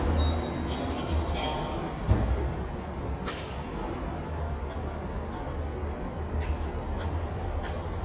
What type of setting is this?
subway station